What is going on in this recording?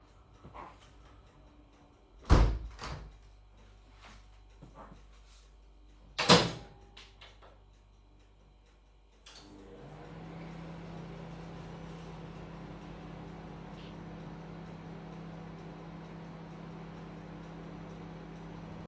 I closed the window in the kitchen, closed the microwave door and started the microwave.